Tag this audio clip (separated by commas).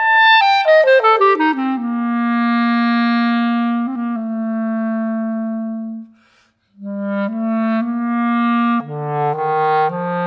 Clarinet, playing clarinet